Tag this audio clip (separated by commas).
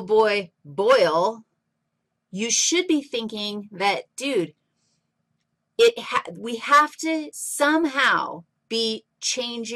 Speech